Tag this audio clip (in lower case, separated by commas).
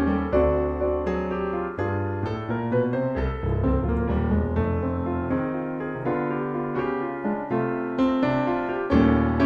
music, keyboard (musical), electric piano, musical instrument